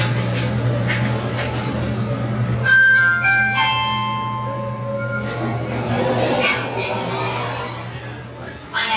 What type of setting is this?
elevator